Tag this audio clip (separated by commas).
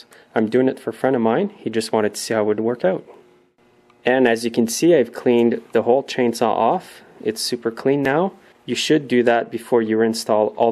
Speech